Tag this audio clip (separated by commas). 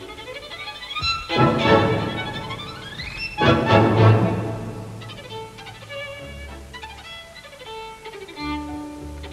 Music, fiddle, Musical instrument